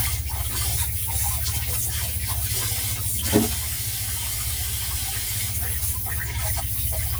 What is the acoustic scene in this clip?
kitchen